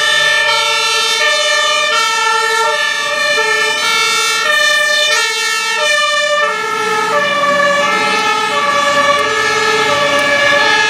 Fire truck sirens blaring in succession